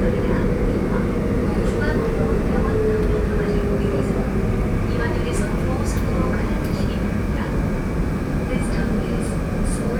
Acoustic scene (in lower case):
subway train